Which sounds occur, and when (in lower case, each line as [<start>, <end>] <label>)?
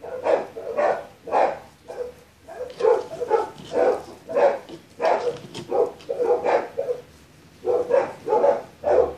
[0.00, 1.06] bark
[0.00, 9.15] mechanisms
[1.24, 1.62] bark
[1.84, 2.21] bark
[2.41, 3.50] bark
[2.65, 3.38] surface contact
[3.57, 4.13] surface contact
[3.67, 4.12] bark
[4.26, 4.65] bark
[4.61, 4.78] generic impact sounds
[4.97, 5.42] bark
[5.03, 5.59] generic impact sounds
[5.69, 5.90] bark
[5.91, 6.07] generic impact sounds
[6.05, 7.02] bark
[6.76, 7.61] surface contact
[7.59, 8.03] bark
[8.26, 8.58] bark
[8.79, 9.15] bark